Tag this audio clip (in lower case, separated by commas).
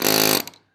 tools